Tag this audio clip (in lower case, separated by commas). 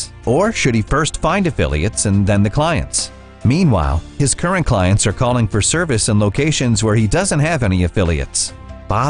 speech, music